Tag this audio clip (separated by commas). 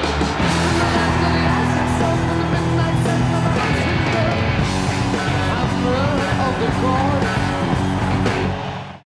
Music